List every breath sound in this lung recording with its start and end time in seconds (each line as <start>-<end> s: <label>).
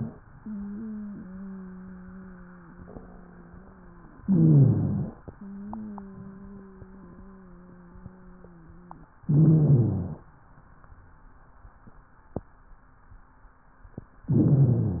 0.30-4.17 s: exhalation
0.30-4.17 s: wheeze
4.25-5.24 s: inhalation
4.25-5.24 s: wheeze
5.30-9.17 s: exhalation
5.30-9.17 s: wheeze
9.25-10.24 s: inhalation
9.25-10.24 s: wheeze
14.27-15.00 s: inhalation
14.27-15.00 s: wheeze